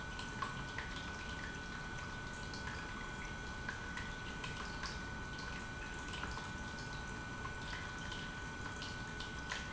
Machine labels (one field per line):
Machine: pump